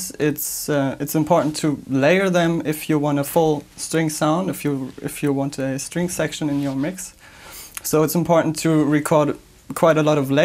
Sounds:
speech

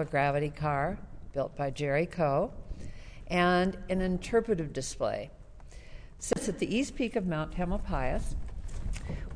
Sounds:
speech

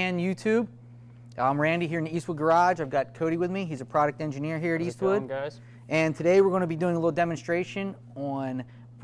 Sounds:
speech

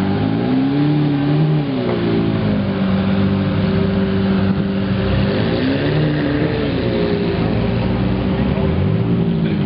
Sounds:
vehicle, outside, urban or man-made, car passing by, motor vehicle (road), car, revving

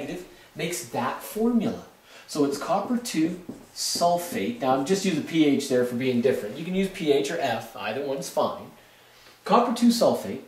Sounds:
speech

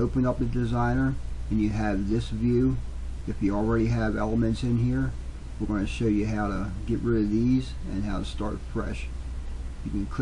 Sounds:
speech

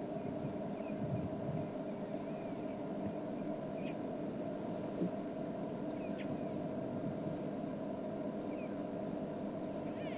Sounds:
animal

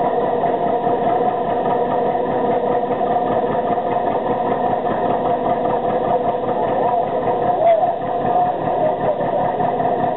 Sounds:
engine

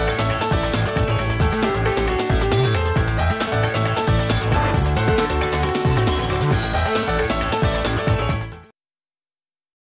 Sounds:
music

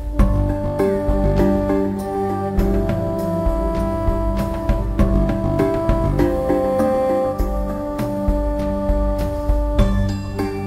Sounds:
music

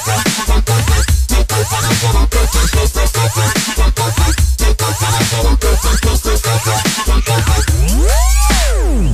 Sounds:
electronic music, music, dubstep

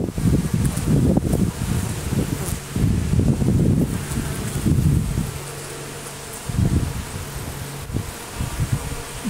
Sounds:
bee

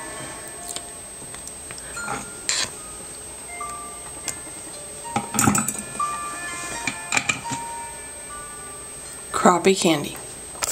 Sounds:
music, speech

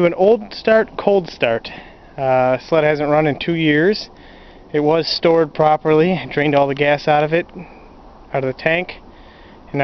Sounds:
speech

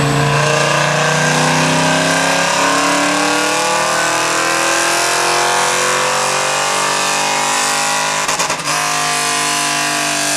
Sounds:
speech

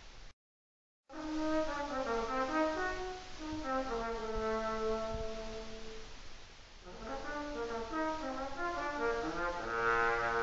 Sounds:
music, trombone, musical instrument

